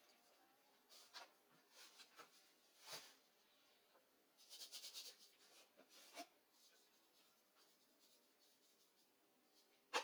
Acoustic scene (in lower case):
kitchen